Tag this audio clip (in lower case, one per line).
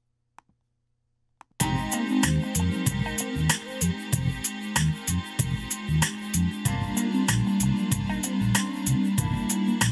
music